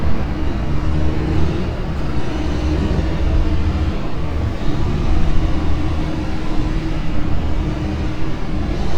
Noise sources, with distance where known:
large-sounding engine, far

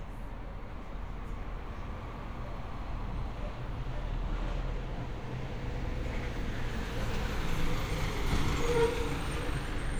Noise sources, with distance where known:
large-sounding engine, near

